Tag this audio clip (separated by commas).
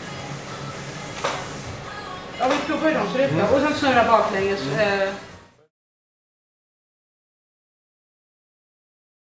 Speech, Music